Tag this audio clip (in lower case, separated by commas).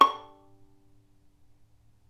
bowed string instrument, music, musical instrument